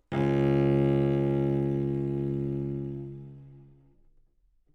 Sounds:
Bowed string instrument, Music, Musical instrument

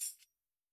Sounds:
Percussion, Musical instrument, Music, Tambourine

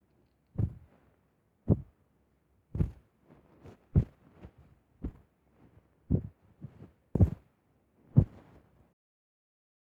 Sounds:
footsteps

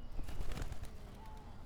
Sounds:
Animal, Wild animals, Bird

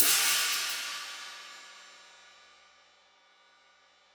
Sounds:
Musical instrument, Hi-hat, Percussion, Cymbal, Music

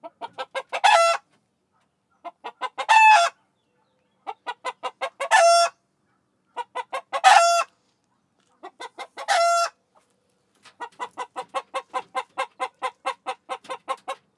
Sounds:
Fowl, rooster, livestock, Animal

